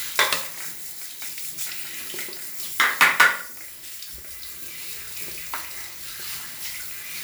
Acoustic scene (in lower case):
restroom